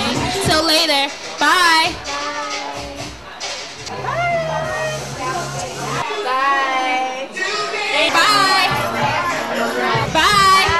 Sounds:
music, speech, inside a public space

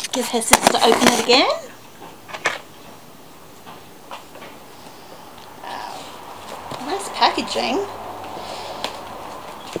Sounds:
inside a small room, speech

